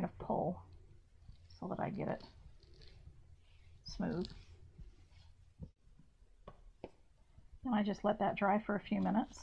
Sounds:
inside a small room
speech

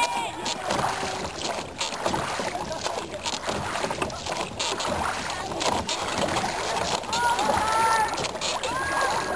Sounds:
canoe

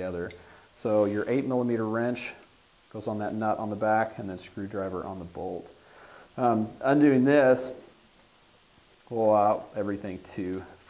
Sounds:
speech

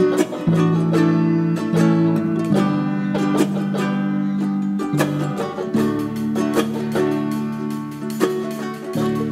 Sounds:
ukulele
music
inside a small room

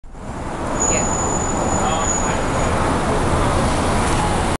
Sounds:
motor vehicle (road)
car
car passing by
vehicle
speech

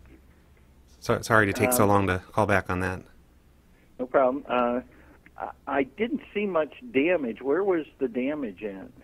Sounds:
speech

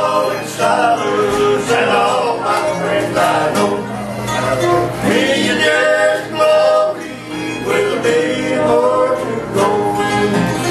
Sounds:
musical instrument
singing
plucked string instrument
music
acoustic guitar
guitar

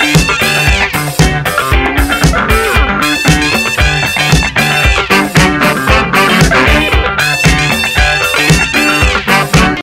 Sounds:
music

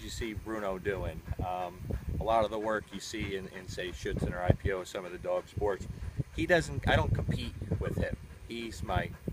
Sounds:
speech

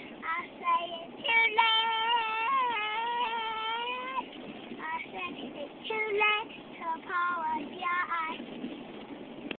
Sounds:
child singing

